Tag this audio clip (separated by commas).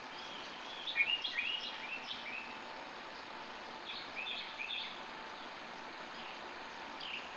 Bird, Animal, Wild animals, bird song